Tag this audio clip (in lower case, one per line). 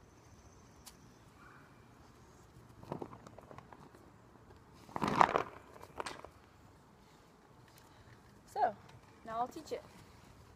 speech